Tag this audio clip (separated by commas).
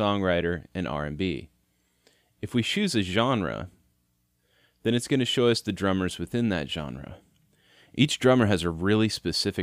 Speech